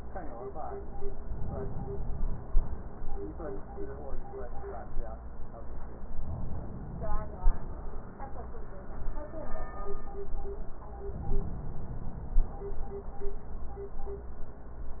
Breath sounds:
Inhalation: 1.23-2.73 s, 6.27-7.77 s, 11.13-12.63 s

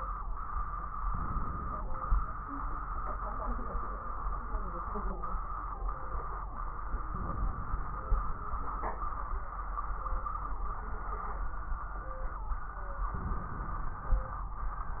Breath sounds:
Inhalation: 1.03-1.97 s, 7.13-8.08 s, 13.18-14.12 s

